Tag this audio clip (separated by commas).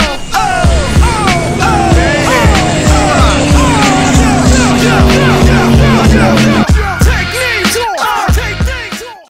speedboat, Boat, Wind